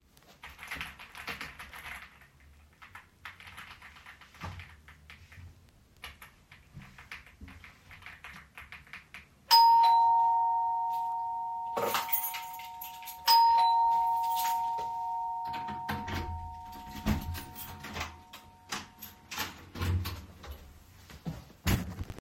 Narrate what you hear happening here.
I was typing on my keyboard and the bell rang twice. I grabbed my keychain, inserted it, oppened the door, and then closed it again.